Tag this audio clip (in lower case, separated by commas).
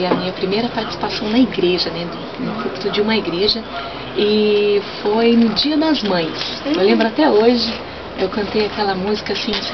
speech, radio